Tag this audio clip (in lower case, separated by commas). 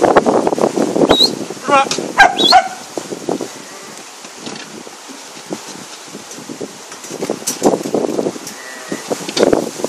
animal, sheep, livestock